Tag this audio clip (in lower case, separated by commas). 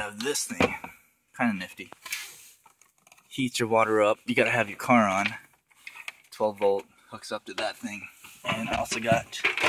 inside a small room, speech